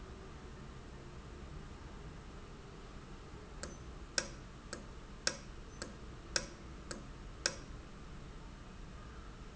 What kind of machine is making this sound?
valve